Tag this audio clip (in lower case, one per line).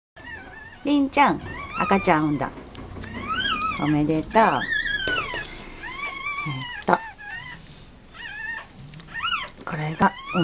animal
domestic animals
dog
speech